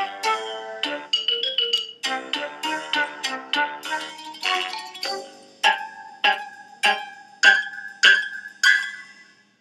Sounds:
music, vibraphone

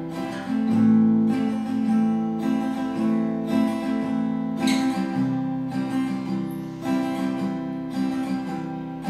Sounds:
strum, music

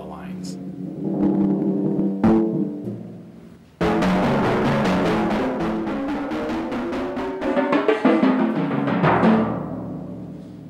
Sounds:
speech, music

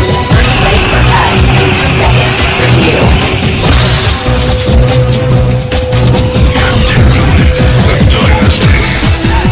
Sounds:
dance music, music

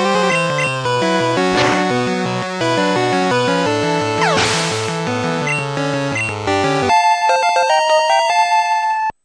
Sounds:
music

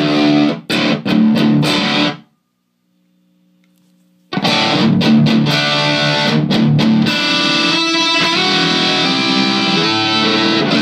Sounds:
distortion, musical instrument, guitar, effects unit, electric guitar

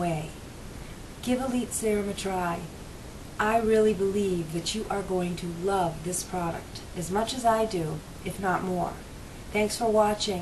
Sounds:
speech

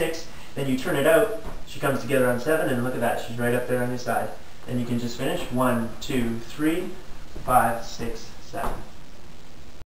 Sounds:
speech

